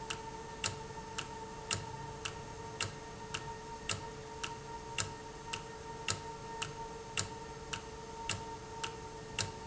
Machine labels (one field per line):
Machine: valve